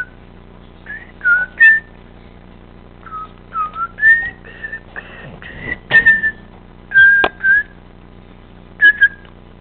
A person whistles multiple times nearby